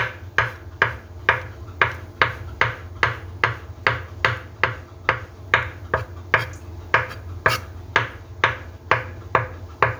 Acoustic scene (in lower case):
kitchen